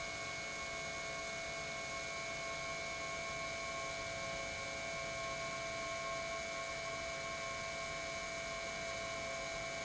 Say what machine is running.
pump